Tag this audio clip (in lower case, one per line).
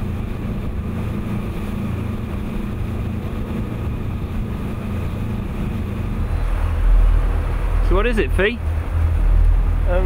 motorboat
speech